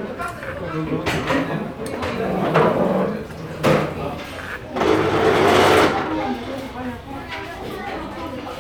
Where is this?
in a restaurant